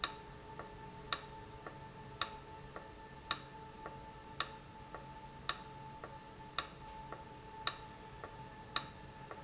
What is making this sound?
valve